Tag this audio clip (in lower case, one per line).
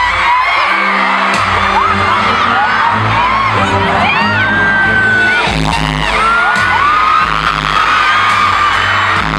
music